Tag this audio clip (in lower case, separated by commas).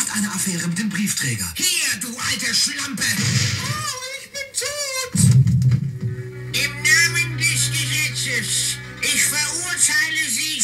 music, radio, speech